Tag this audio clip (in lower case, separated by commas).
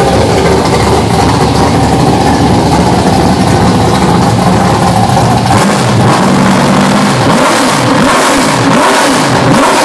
engine, car, vehicle